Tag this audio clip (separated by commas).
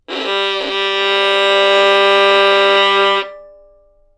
Bowed string instrument, Music, Musical instrument